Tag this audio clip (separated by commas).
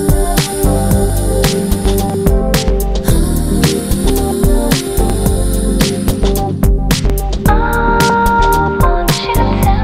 Music